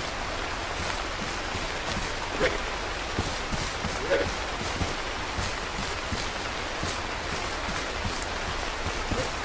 Strong pouring rain with short animal sounds